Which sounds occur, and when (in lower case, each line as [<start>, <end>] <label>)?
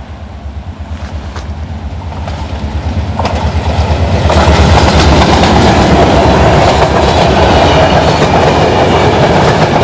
[0.00, 9.83] train
[0.00, 9.83] wind
[0.90, 1.42] clickety-clack
[1.32, 1.39] tick
[2.10, 2.55] clickety-clack
[2.25, 2.30] tick
[3.16, 3.85] clickety-clack
[3.23, 3.27] tick
[4.29, 9.83] clickety-clack